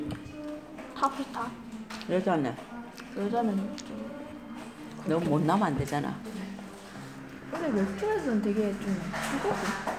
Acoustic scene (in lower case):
crowded indoor space